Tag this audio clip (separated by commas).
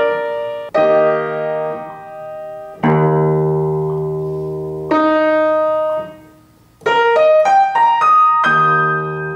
Keyboard (musical), Music, Musical instrument, playing piano, Electronic tuner, inside a small room, Piano